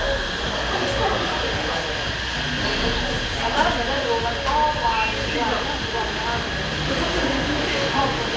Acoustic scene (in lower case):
cafe